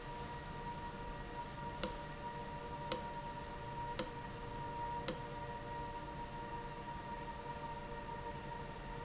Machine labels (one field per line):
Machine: valve